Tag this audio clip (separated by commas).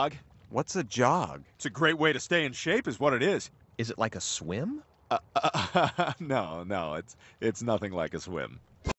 Speech